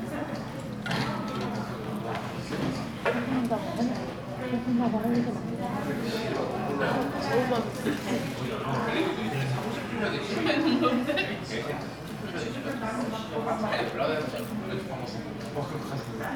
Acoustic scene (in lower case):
crowded indoor space